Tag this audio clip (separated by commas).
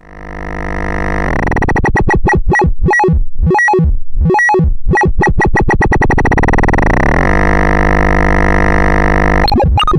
Music, Synthesizer